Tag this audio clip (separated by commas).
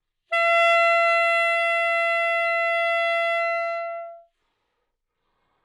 Music, Musical instrument, Wind instrument